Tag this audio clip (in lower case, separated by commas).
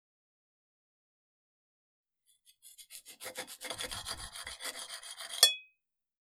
home sounds, cutlery